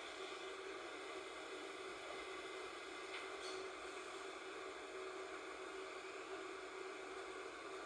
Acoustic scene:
subway train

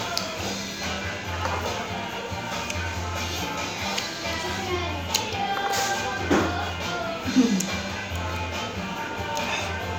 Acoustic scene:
restaurant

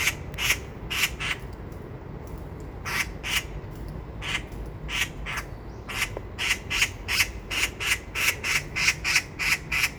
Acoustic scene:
park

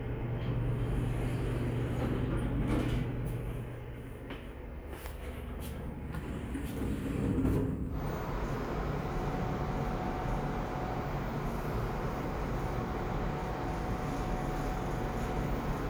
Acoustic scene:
elevator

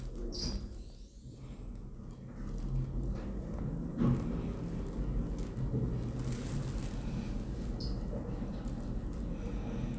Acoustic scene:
elevator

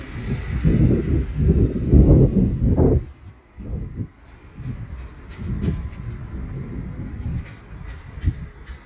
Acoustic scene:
residential area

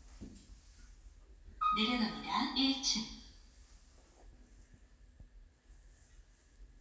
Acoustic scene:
elevator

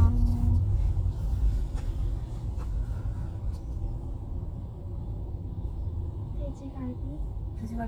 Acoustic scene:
car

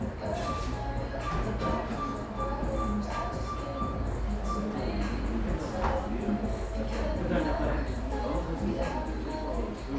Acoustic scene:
cafe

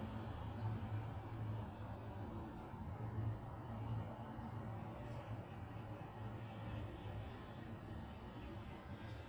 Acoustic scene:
residential area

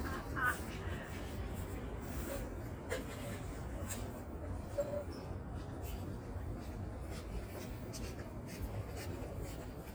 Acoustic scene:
residential area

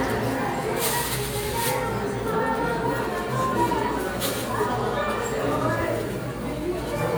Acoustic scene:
crowded indoor space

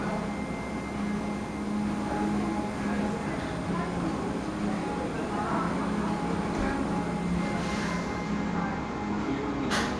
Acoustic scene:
cafe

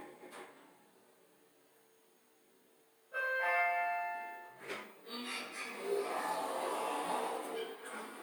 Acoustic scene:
elevator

